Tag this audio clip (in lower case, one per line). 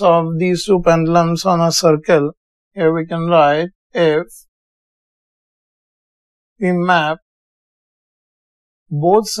speech